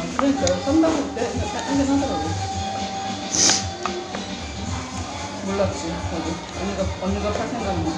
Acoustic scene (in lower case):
restaurant